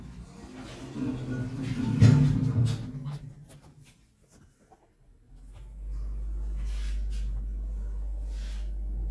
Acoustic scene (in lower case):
elevator